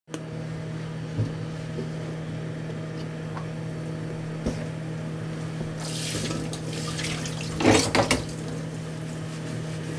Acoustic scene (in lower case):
kitchen